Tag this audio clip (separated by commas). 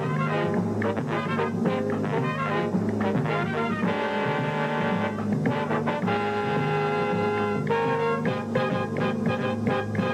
Music